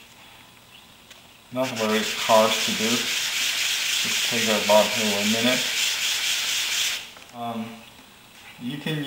White noise with muffled speech and high pitched rubbing